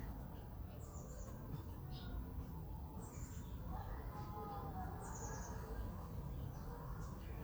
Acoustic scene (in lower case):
residential area